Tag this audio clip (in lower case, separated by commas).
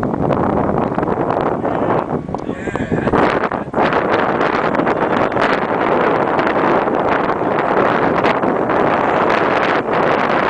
speech